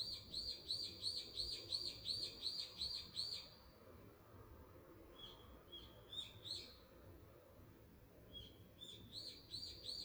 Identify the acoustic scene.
park